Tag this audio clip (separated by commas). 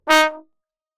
Brass instrument, Music, Musical instrument